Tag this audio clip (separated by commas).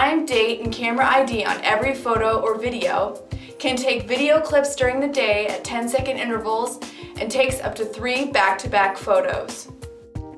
Music, Speech